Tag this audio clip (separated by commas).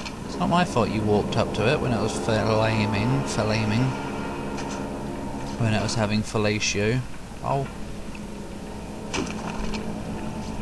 Speech, Vehicle